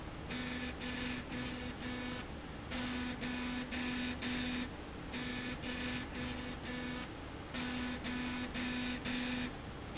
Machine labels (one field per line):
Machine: slide rail